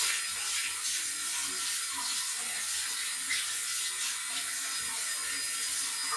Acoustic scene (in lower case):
restroom